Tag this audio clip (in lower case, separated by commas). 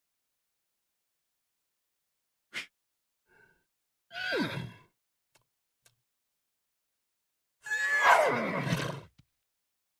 horse, neigh, animal